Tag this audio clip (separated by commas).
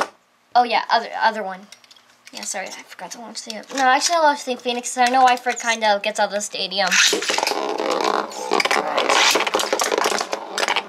inside a small room, Speech